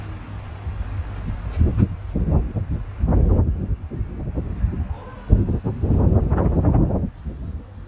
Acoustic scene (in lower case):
residential area